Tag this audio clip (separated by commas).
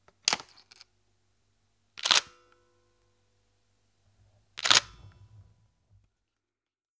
Mechanisms, Camera